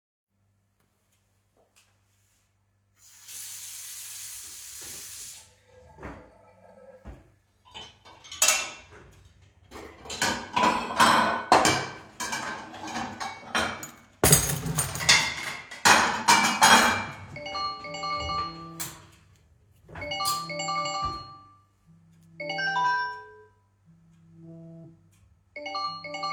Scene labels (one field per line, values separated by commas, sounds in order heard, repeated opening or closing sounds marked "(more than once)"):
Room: kitchen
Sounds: footsteps, running water, wardrobe or drawer (more than once), cutlery and dishes, phone ringing